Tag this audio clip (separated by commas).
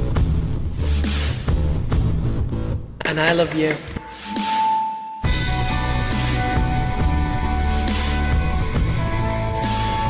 Speech, Music